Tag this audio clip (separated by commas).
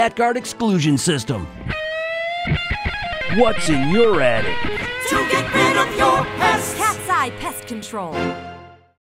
Speech, Music